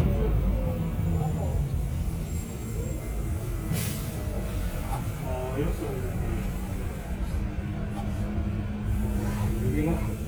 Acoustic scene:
bus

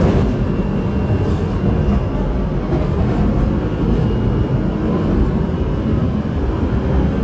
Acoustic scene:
subway train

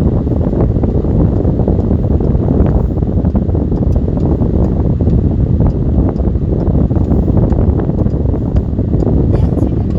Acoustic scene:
car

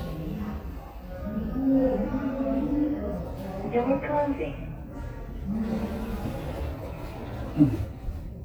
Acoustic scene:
elevator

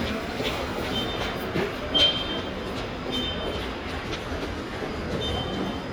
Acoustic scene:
subway station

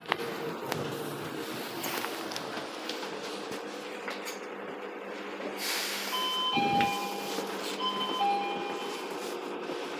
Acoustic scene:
bus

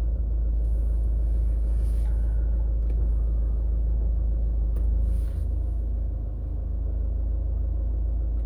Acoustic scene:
car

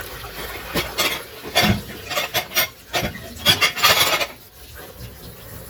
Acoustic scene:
kitchen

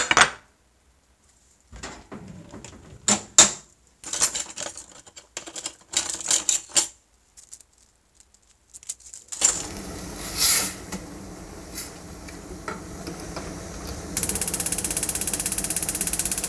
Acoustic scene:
kitchen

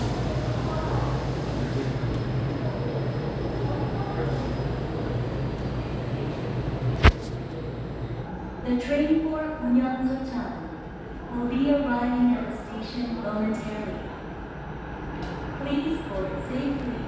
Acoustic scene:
subway station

